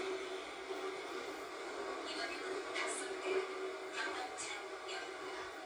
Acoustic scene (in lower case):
subway train